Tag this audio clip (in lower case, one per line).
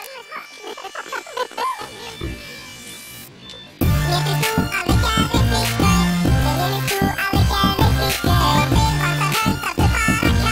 music